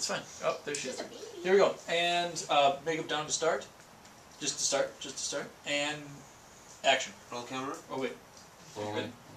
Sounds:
Speech

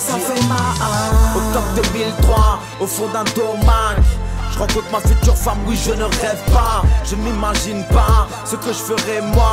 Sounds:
Music

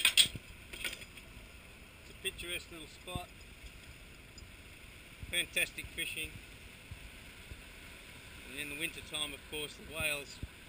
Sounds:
Speech

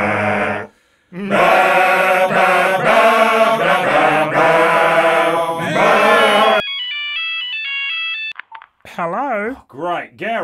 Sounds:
Speech

